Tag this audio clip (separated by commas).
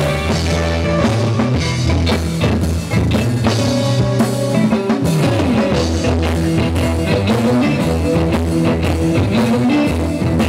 Bowed string instrument